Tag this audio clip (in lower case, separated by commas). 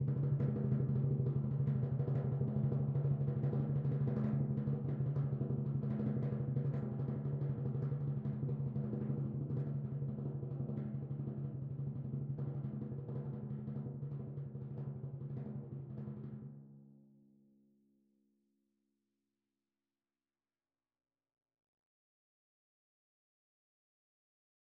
percussion, drum, music, musical instrument